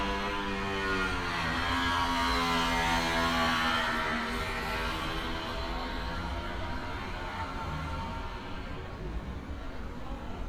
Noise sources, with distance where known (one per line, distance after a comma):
chainsaw